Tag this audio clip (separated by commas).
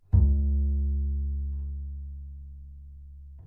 Musical instrument, Bowed string instrument, Music